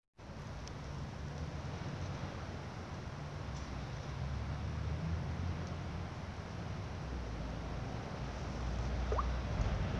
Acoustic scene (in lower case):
residential area